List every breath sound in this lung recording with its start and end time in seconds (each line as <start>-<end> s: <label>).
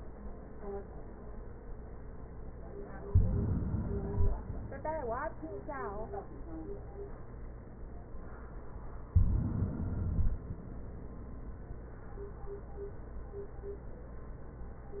2.99-4.02 s: inhalation
4.00-4.66 s: exhalation
9.06-10.09 s: inhalation
10.08-10.89 s: exhalation